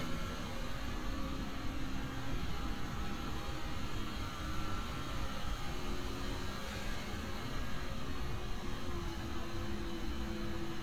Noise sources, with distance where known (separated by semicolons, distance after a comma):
large-sounding engine